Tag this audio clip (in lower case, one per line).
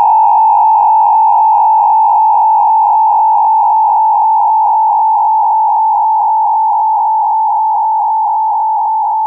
electronic music
music